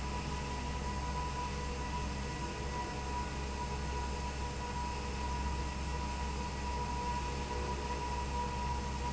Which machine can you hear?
fan